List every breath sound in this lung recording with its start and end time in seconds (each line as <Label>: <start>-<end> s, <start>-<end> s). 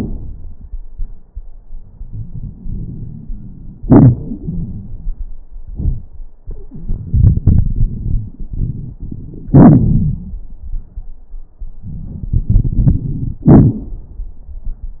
Inhalation: 2.02-3.83 s, 6.93-9.49 s, 11.83-13.39 s
Exhalation: 3.85-5.17 s, 9.51-10.36 s, 13.48-14.12 s
Crackles: 2.02-3.83 s, 3.85-5.17 s, 6.93-9.49 s, 9.51-10.36 s, 11.83-13.39 s, 13.48-14.12 s